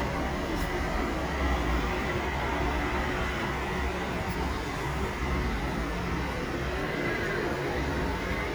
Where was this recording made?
in a residential area